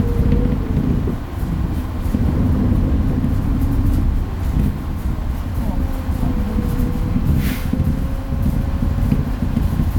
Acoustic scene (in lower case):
bus